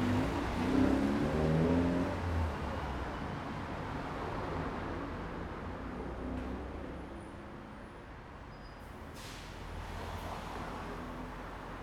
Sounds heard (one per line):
bus
car engine accelerating
bus compressor
car
car wheels rolling
bus brakes
bus engine accelerating